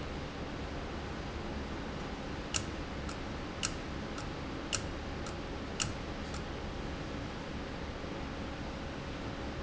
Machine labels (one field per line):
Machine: valve